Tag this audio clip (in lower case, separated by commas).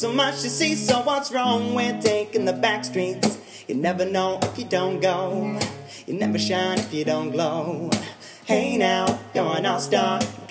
music